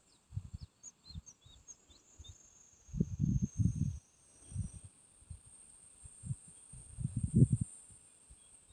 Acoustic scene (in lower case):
park